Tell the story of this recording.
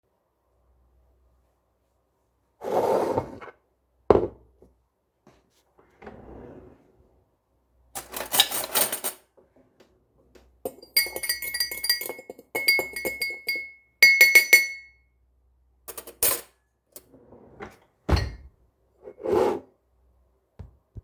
I opened a drawer, picked up a tea spoon from piles of spoon. Then stirred my tea in a glass cup, put the spoon back and closed the drawer.